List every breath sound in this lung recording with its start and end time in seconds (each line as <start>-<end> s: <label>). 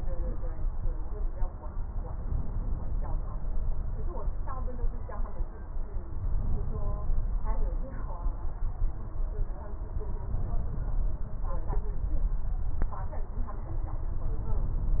2.15-3.18 s: inhalation
6.22-7.43 s: inhalation